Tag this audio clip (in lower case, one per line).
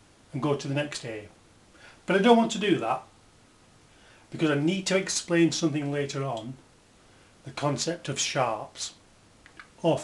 inside a small room
speech